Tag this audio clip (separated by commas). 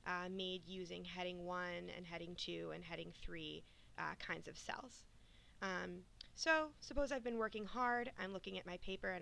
Speech